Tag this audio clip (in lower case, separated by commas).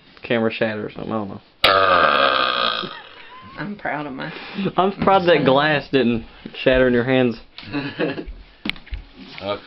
burping, speech